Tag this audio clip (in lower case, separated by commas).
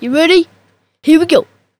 human voice, kid speaking, speech